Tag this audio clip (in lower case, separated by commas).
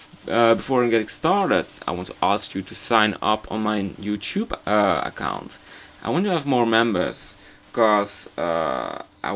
speech